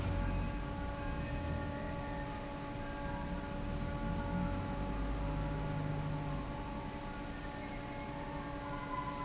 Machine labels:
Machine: fan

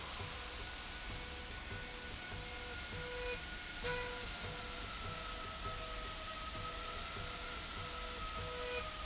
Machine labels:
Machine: slide rail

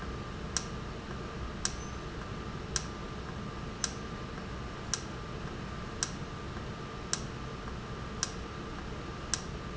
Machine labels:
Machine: valve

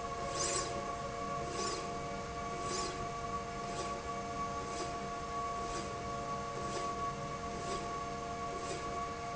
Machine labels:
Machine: slide rail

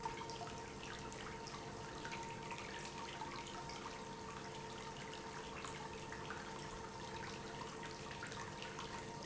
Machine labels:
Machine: pump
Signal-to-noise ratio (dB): 6 dB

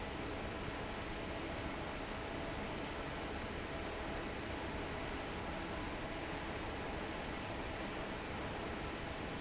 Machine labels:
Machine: fan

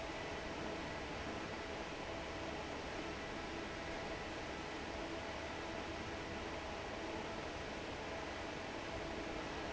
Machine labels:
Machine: fan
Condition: normal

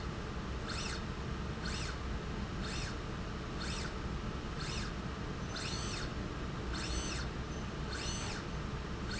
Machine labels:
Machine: slide rail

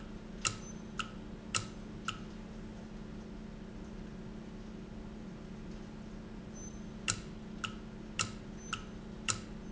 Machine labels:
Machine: valve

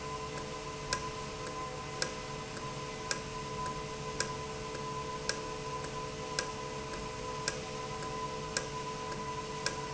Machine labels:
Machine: valve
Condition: normal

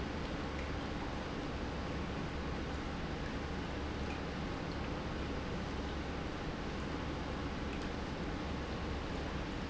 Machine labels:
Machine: pump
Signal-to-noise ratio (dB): -6 dB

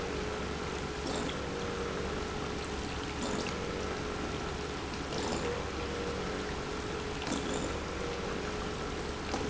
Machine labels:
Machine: pump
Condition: abnormal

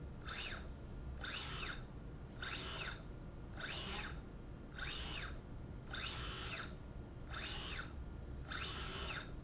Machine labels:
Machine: slide rail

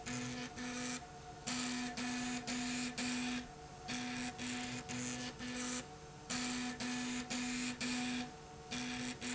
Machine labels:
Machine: slide rail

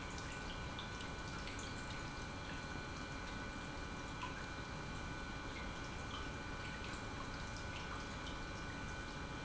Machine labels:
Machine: pump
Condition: normal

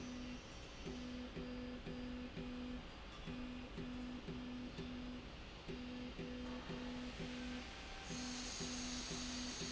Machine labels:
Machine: slide rail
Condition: normal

